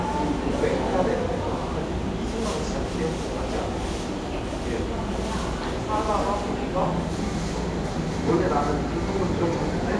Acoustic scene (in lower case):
cafe